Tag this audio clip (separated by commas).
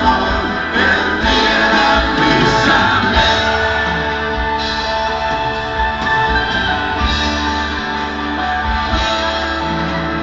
Music